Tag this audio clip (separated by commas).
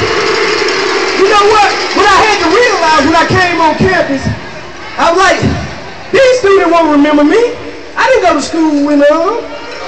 Speech